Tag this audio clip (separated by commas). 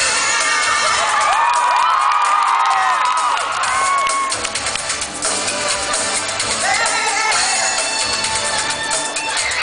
Music, Speech